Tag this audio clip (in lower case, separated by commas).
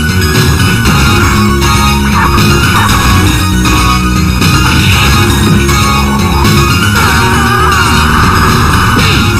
music, speech